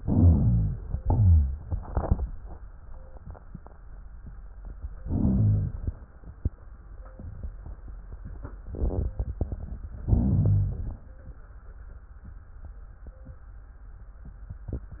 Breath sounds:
0.00-0.98 s: inhalation
1.06-2.23 s: exhalation
5.03-5.95 s: inhalation
10.05-10.96 s: inhalation

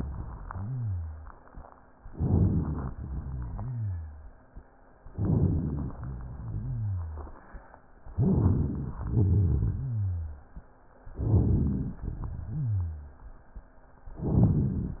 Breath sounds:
0.40-1.34 s: rhonchi
2.09-2.93 s: inhalation
2.09-2.93 s: rhonchi
2.95-4.32 s: exhalation
2.95-4.32 s: rhonchi
5.10-5.92 s: inhalation
5.10-5.92 s: rhonchi
5.96-7.37 s: exhalation
5.96-7.37 s: rhonchi
8.11-9.00 s: inhalation
8.11-9.00 s: rhonchi
9.04-10.56 s: exhalation
9.04-10.56 s: rhonchi
11.13-11.99 s: inhalation
11.13-11.99 s: rhonchi
12.03-13.27 s: exhalation
12.03-13.27 s: rhonchi
14.14-15.00 s: inhalation
14.14-15.00 s: rhonchi

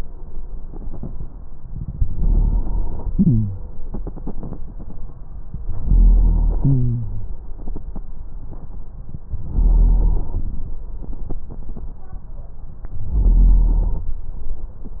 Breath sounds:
2.07-3.06 s: inhalation
5.64-6.62 s: inhalation
9.48-10.80 s: inhalation
12.93-14.13 s: inhalation

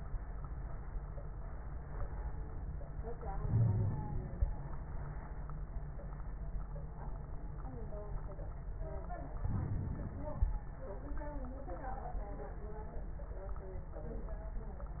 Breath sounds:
3.34-4.69 s: inhalation
3.46-4.35 s: wheeze
9.40-10.60 s: inhalation
9.40-10.60 s: crackles

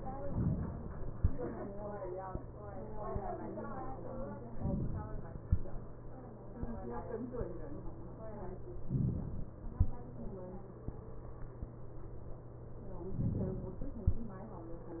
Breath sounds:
0.37-1.16 s: inhalation
4.56-5.35 s: inhalation
8.86-9.65 s: inhalation
13.14-13.93 s: inhalation

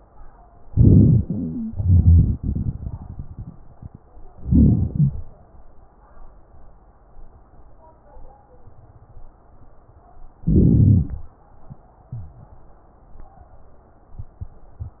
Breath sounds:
0.61-1.71 s: inhalation
1.19-1.71 s: wheeze
1.69-3.99 s: exhalation
4.43-4.89 s: inhalation
4.89-5.28 s: exhalation
4.89-5.28 s: wheeze
10.43-11.29 s: inhalation
12.16-12.58 s: wheeze

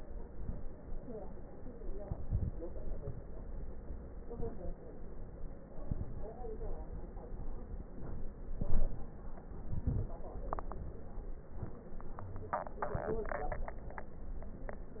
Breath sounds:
1.76-2.67 s: inhalation
1.76-2.67 s: crackles
5.69-6.35 s: inhalation
5.69-6.35 s: crackles
8.35-9.38 s: crackles
8.35-9.41 s: inhalation
9.40-10.32 s: exhalation
9.40-10.32 s: crackles

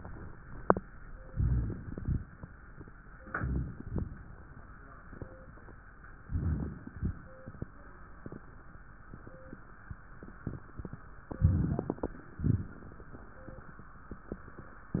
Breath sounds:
1.24-2.22 s: inhalation
3.15-3.83 s: inhalation
3.83-4.37 s: exhalation
6.21-6.92 s: inhalation
6.89-7.50 s: exhalation
11.32-12.12 s: inhalation
12.38-13.18 s: exhalation

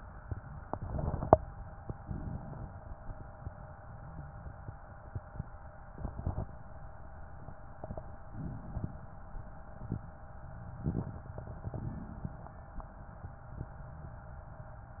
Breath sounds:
1.75-3.17 s: inhalation
7.98-9.40 s: inhalation

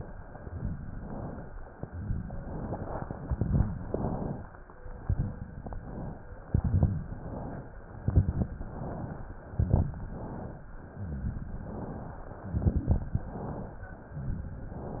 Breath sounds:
0.34-0.88 s: exhalation
0.34-0.88 s: crackles
0.88-1.63 s: inhalation
1.68-2.44 s: exhalation
1.68-2.44 s: crackles
2.55-3.30 s: inhalation
3.33-3.82 s: exhalation
3.33-3.82 s: crackles
3.83-4.59 s: inhalation
4.93-5.42 s: exhalation
4.93-5.42 s: crackles
5.47-6.28 s: inhalation
6.52-7.07 s: exhalation
6.52-7.07 s: crackles
7.08-7.89 s: inhalation
8.00-8.55 s: exhalation
8.00-8.55 s: crackles
8.62-9.43 s: inhalation
9.44-9.99 s: exhalation
9.44-9.99 s: crackles
10.00-10.81 s: inhalation
10.81-11.63 s: exhalation
10.81-11.63 s: crackles
11.62-12.44 s: inhalation
12.45-13.26 s: exhalation
12.45-13.26 s: crackles
13.29-14.11 s: inhalation
14.19-15.00 s: exhalation
14.19-15.00 s: crackles

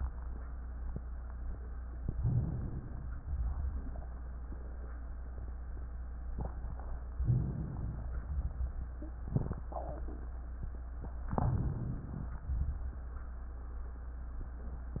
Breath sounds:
2.11-3.00 s: inhalation
3.21-4.04 s: exhalation
7.27-8.16 s: inhalation
8.20-8.90 s: exhalation
11.37-12.45 s: inhalation
12.45-13.07 s: exhalation

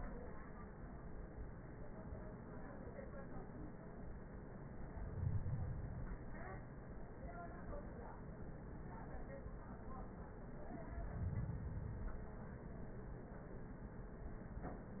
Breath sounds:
4.74-6.24 s: inhalation
10.78-12.60 s: inhalation

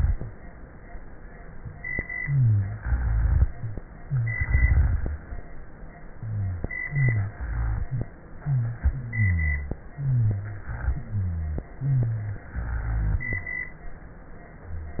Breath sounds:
2.16-2.79 s: inhalation
2.16-2.79 s: wheeze
2.77-3.49 s: exhalation
2.77-3.49 s: rhonchi
4.02-4.38 s: inhalation
4.02-4.38 s: wheeze
4.36-5.18 s: exhalation
4.36-5.18 s: rhonchi
6.22-6.66 s: inhalation
6.22-6.66 s: wheeze
6.87-7.33 s: inhalation
6.87-7.33 s: wheeze
7.40-8.06 s: exhalation
7.40-8.06 s: rhonchi
8.43-8.86 s: inhalation
8.43-8.86 s: wheeze
8.90-9.77 s: exhalation
8.90-9.77 s: rhonchi
9.94-10.70 s: inhalation
9.94-10.70 s: wheeze
10.95-11.71 s: exhalation
10.95-11.71 s: rhonchi
11.78-12.45 s: inhalation
11.78-12.45 s: wheeze
12.56-13.55 s: exhalation
12.56-13.55 s: rhonchi

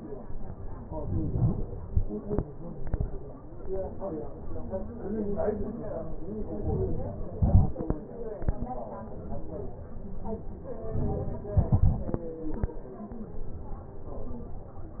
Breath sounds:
1.01-1.91 s: inhalation
6.67-7.26 s: inhalation
7.26-8.26 s: exhalation
10.98-11.60 s: inhalation
11.62-13.16 s: exhalation

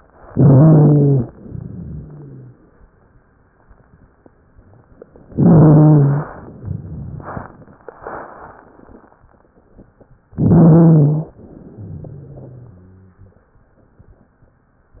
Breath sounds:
0.28-1.25 s: inhalation
0.28-1.25 s: wheeze
1.29-2.54 s: exhalation
1.29-2.54 s: wheeze
5.30-6.29 s: inhalation
5.30-6.29 s: wheeze
6.33-7.80 s: exhalation
6.53-7.80 s: crackles
10.36-11.35 s: inhalation
10.36-11.35 s: wheeze
11.39-13.45 s: exhalation
11.71-13.45 s: wheeze

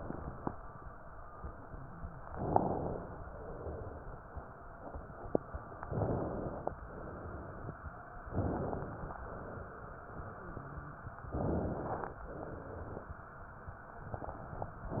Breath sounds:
2.31-3.15 s: inhalation
3.26-4.10 s: exhalation
5.90-6.74 s: inhalation
6.87-7.71 s: exhalation
8.33-9.17 s: inhalation
9.24-10.08 s: exhalation
11.38-12.22 s: inhalation
12.31-13.15 s: exhalation

